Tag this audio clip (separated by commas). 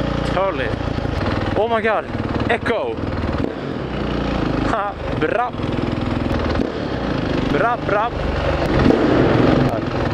Speech, outside, urban or man-made, Vehicle, Motorcycle